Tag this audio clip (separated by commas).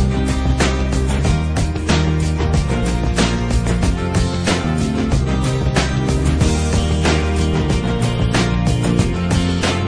Music